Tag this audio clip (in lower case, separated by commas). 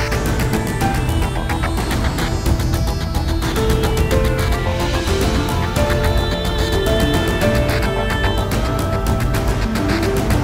music